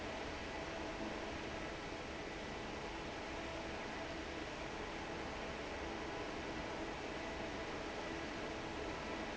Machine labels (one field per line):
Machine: fan